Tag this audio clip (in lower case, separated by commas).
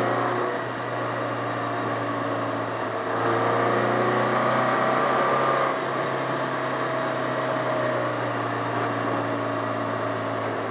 outside, rural or natural, car, vehicle